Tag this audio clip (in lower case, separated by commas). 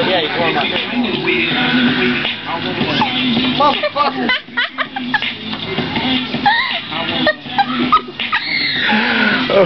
music, speech